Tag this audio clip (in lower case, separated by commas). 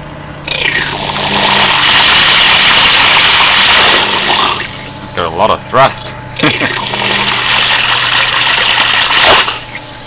speech